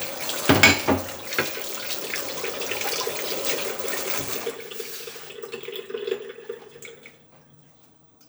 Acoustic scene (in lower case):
kitchen